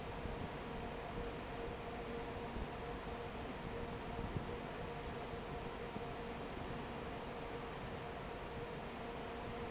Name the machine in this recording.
fan